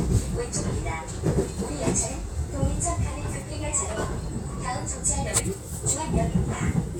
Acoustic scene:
subway train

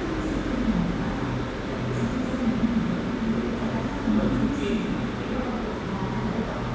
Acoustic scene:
cafe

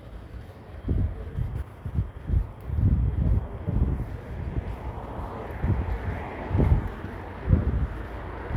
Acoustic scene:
residential area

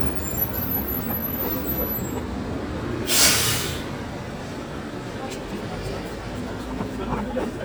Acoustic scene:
street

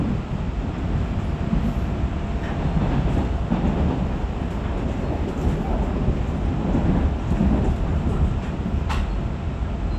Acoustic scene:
subway train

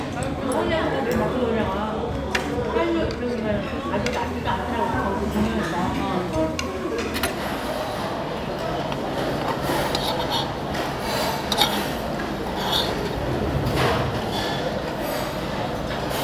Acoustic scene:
restaurant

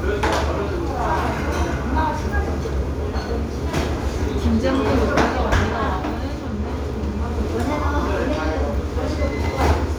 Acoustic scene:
restaurant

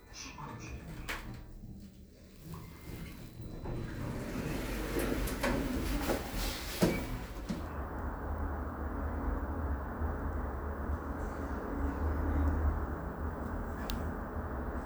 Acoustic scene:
elevator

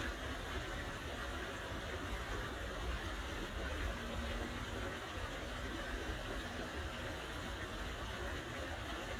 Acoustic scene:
park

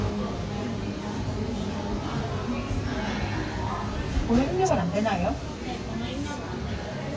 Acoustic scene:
cafe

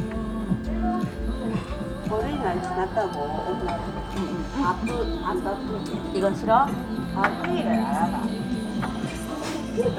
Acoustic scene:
restaurant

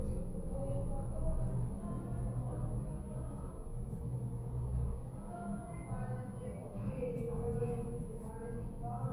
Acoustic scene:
elevator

